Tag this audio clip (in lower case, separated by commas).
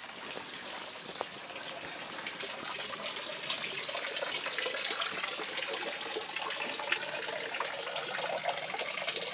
faucet, gush